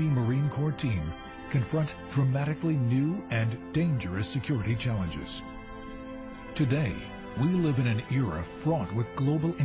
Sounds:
Music, Speech

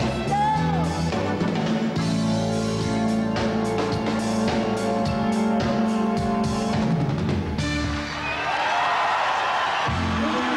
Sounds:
Singing, Music, Pop music

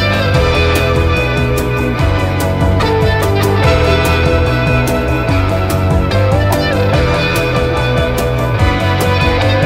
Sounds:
Music, Video game music

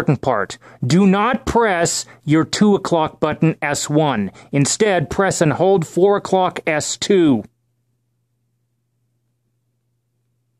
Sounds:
Speech

